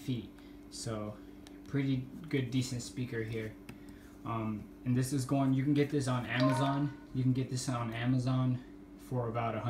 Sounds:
speech

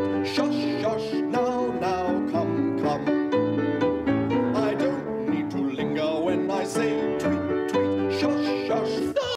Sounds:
music

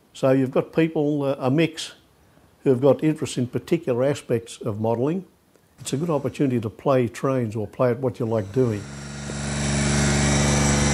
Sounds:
speech, train

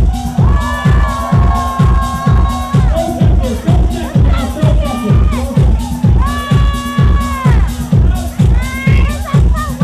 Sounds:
speech, music

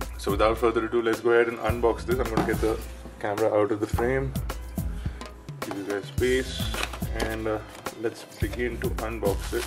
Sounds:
speech, music, inside a small room

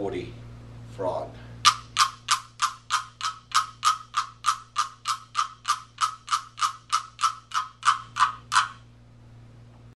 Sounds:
speech

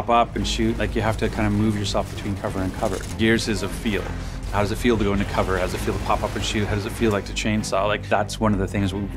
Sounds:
music, speech

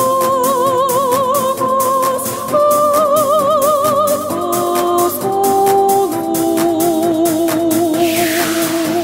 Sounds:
music, techno, opera, electronic music

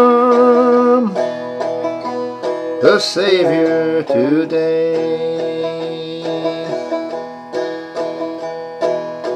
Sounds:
music, banjo

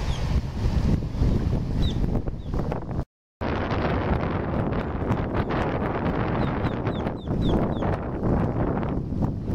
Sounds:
wind noise (microphone), water vehicle, motorboat, wind

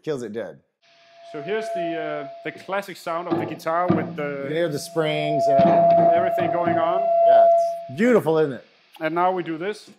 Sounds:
speech

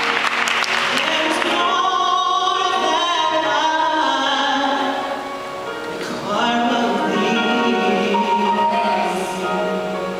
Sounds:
male singing, music

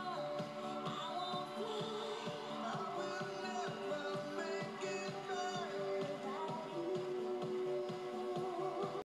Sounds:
music

